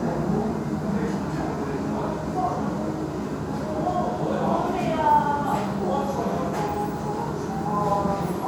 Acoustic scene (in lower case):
restaurant